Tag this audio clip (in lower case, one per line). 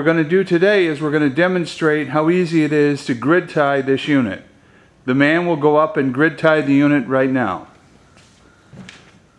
speech